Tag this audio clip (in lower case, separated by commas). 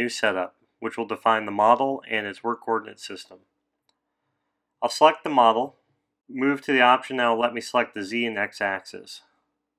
speech